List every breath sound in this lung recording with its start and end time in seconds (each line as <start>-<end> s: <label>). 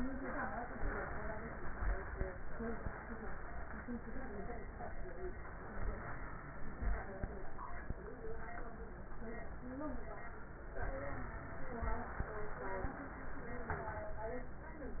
0.00-0.80 s: inhalation
0.85-2.33 s: exhalation
10.83-13.74 s: inhalation